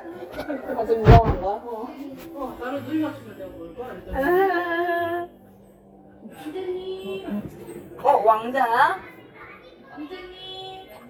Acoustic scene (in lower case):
crowded indoor space